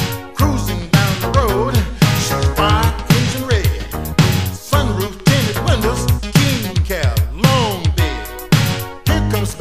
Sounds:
Music, Soundtrack music

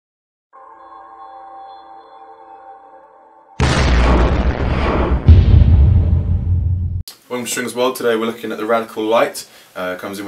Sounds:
inside a small room, Speech

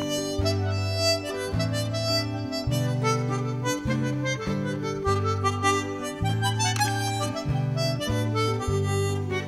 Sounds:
Music, Folk music, Happy music

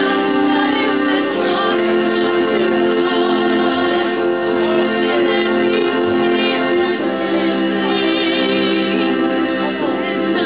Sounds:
Music, Speech

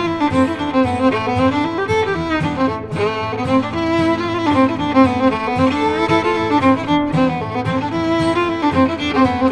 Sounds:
Musical instrument, fiddle, Music

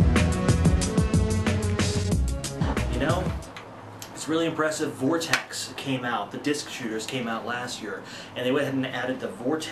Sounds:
Speech, Music

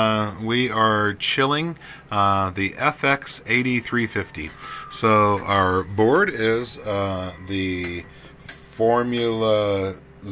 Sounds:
Speech

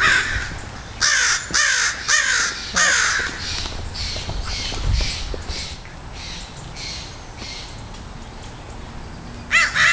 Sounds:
crow cawing

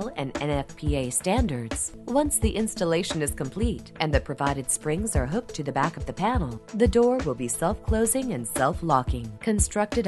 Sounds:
Music, Speech

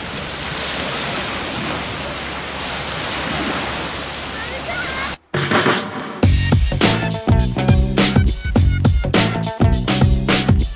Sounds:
Speech, Music

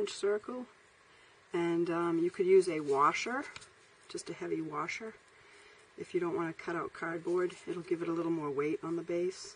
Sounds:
Speech

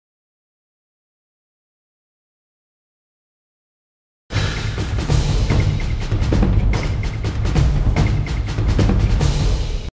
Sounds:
Music

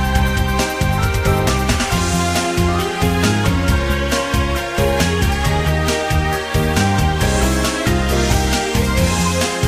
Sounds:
Music

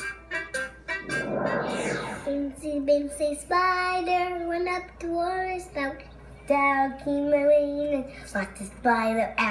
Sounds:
Music, Speech

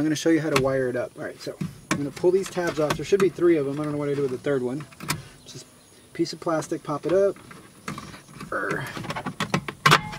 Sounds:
Speech, outside, rural or natural

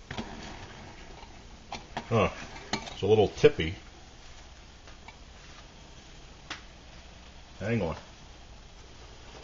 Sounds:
Speech, Boiling

